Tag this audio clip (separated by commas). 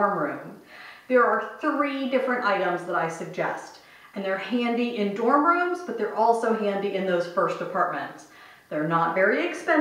Speech